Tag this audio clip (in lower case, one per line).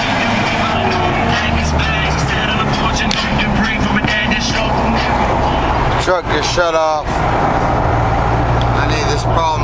music
speech